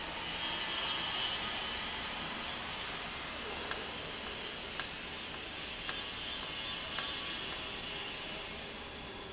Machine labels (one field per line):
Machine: valve